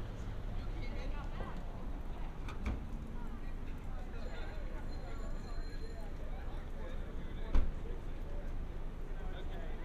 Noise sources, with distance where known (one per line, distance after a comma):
background noise